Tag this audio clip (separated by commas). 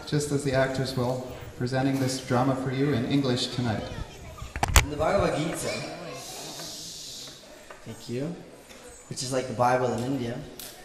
Speech